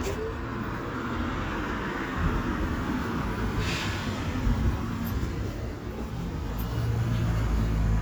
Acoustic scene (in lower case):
street